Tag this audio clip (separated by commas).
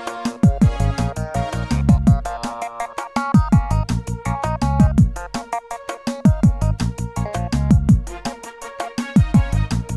Music